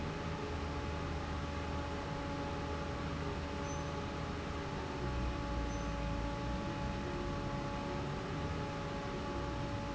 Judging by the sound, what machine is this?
fan